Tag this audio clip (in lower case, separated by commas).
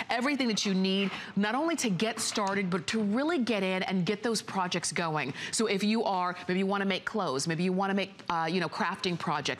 speech